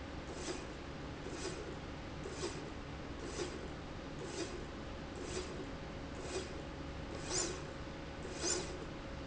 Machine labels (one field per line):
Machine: slide rail